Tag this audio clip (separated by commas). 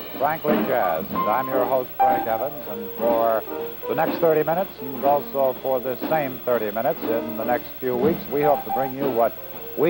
Speech, Music